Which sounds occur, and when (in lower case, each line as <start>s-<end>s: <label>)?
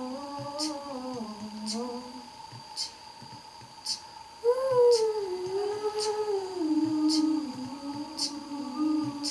0.0s-2.3s: humming
0.0s-9.3s: mechanisms
0.3s-0.5s: music
0.6s-0.6s: human sounds
1.0s-1.5s: music
1.7s-1.7s: human sounds
2.4s-2.6s: music
2.8s-2.8s: human sounds
3.1s-3.8s: music
3.8s-4.0s: human sounds
4.3s-9.3s: humming
4.7s-4.8s: music
4.9s-5.0s: human sounds
5.4s-5.6s: music
6.0s-6.1s: human sounds
6.8s-7.0s: music
7.1s-7.2s: human sounds
7.4s-8.0s: music
8.2s-8.3s: human sounds
9.0s-9.1s: music
9.3s-9.3s: human sounds